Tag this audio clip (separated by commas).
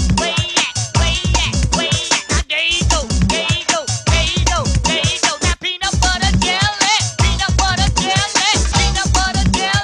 Music